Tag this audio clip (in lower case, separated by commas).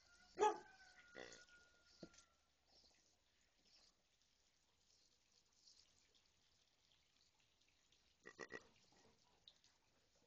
animal, dog